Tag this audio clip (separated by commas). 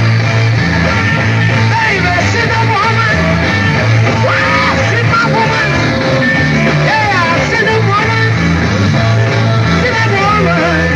Music, inside a public space, Singing, inside a large room or hall